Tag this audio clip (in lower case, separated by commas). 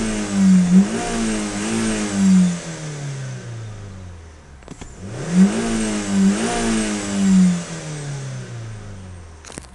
vehicle, car